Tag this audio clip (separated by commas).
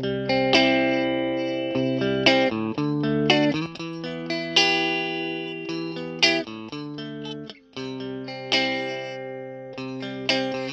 Music, Effects unit, Guitar, Musical instrument, Distortion